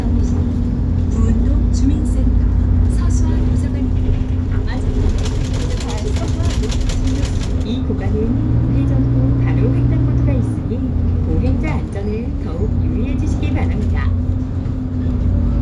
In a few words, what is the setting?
bus